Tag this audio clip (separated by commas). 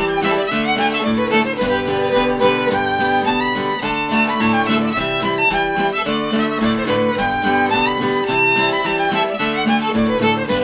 fiddle, Musical instrument, Music